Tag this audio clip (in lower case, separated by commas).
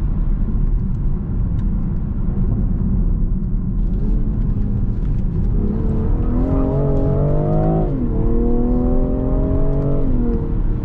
car passing by